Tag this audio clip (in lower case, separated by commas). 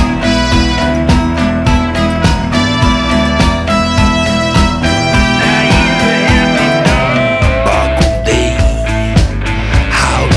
music